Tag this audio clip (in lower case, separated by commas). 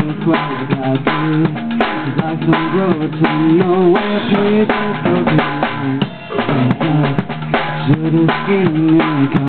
music